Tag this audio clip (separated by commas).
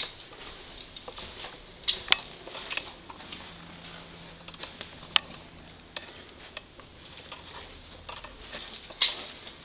Cutlery